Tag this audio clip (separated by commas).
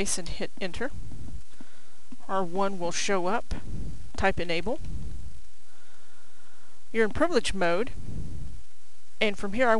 Speech